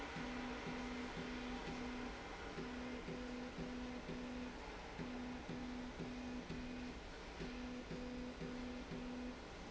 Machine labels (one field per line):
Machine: slide rail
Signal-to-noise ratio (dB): 6 dB